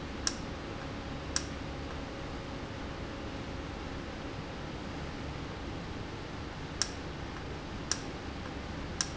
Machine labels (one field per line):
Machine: valve